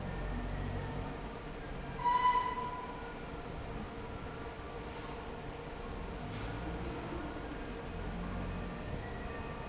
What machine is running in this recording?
fan